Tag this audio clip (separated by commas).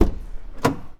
Motor vehicle (road), Vehicle, Car